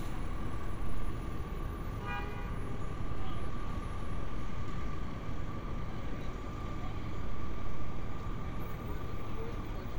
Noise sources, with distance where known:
medium-sounding engine, near
car horn, near

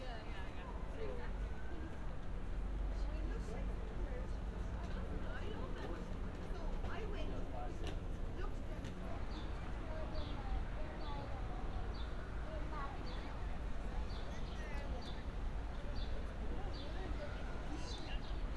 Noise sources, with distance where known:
person or small group talking

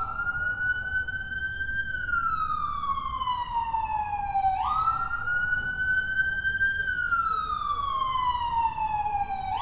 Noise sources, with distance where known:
siren, near

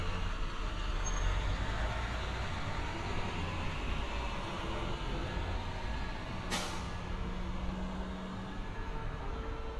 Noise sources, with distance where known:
large-sounding engine, near

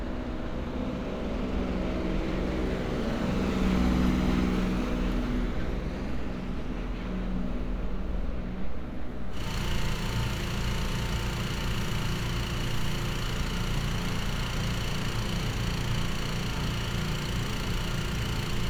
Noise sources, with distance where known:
engine of unclear size

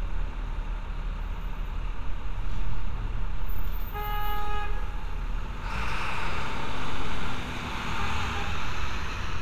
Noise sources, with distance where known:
large-sounding engine, near
car horn, near

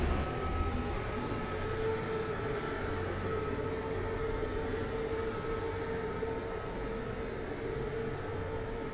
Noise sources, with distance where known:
unidentified alert signal, far

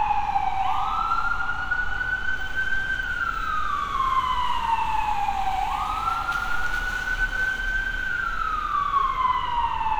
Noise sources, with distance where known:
siren

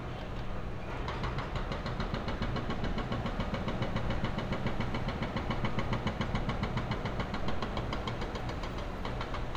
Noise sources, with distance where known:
hoe ram, near

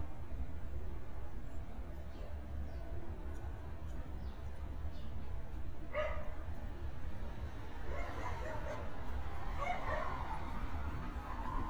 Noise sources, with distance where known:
dog barking or whining

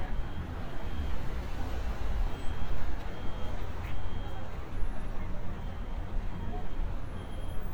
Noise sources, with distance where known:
unidentified alert signal
person or small group talking

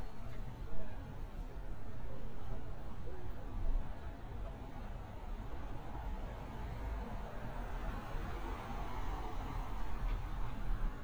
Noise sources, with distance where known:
medium-sounding engine

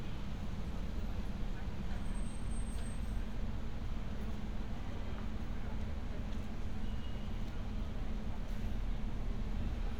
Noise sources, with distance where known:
engine of unclear size

